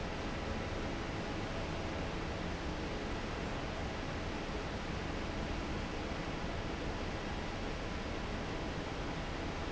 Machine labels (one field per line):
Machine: fan